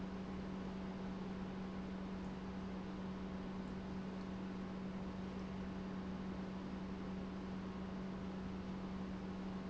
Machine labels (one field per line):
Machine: pump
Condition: normal